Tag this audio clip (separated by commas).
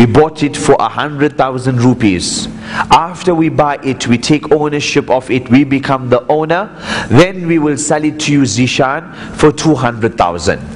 Speech